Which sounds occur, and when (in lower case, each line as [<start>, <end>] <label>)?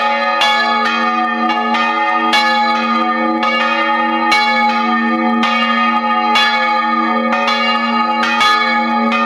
[0.00, 9.25] church bell